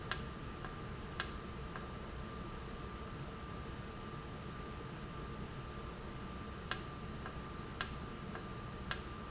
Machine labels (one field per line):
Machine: valve